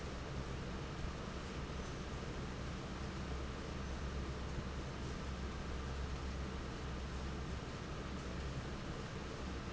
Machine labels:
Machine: fan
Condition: normal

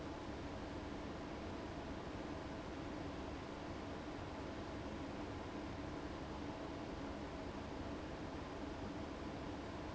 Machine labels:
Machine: fan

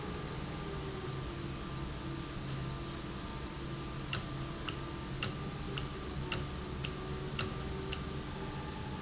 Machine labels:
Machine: valve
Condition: normal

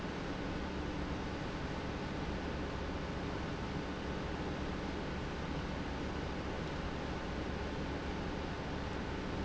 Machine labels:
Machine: pump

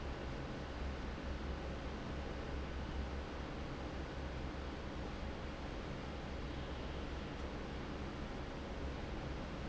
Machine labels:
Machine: fan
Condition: normal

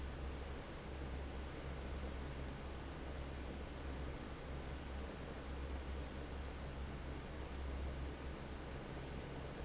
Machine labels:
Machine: fan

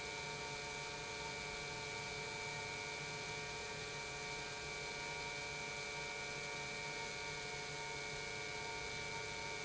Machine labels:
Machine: pump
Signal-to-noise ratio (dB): 6 dB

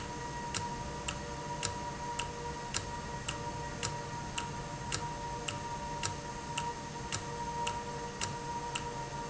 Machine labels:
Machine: valve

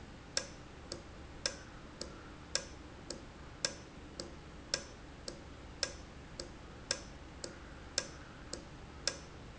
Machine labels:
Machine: valve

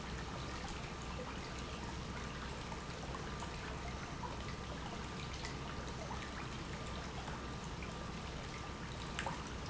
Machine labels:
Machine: pump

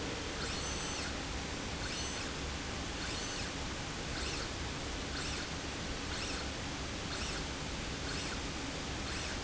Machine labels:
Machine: slide rail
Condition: normal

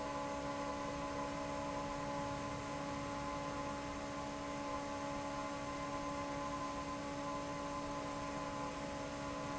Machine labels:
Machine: fan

